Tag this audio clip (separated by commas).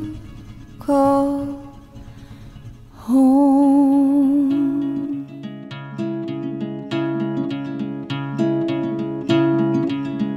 Music